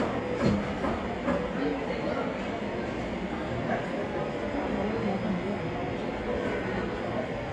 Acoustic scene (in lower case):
cafe